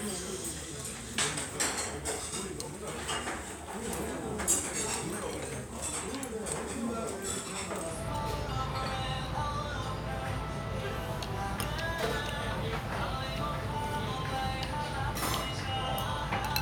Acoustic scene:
restaurant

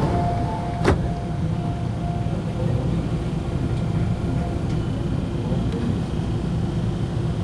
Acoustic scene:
subway train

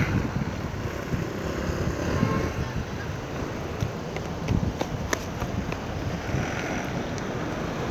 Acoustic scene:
street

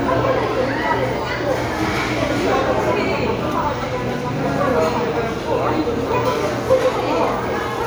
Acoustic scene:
crowded indoor space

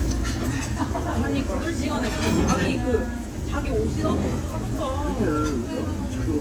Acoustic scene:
crowded indoor space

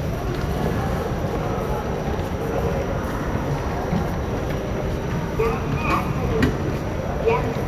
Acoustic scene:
subway station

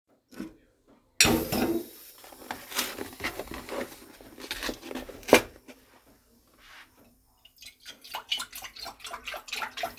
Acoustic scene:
kitchen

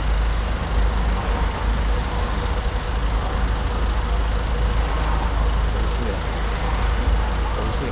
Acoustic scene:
street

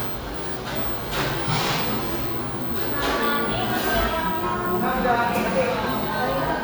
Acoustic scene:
cafe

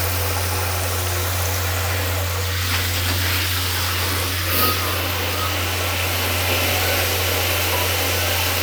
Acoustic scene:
restroom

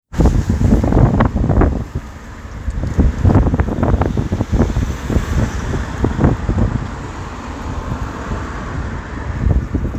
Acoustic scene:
street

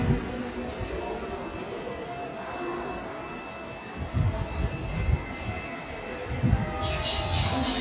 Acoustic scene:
subway station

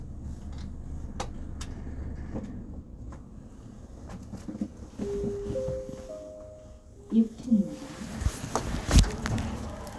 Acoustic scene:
elevator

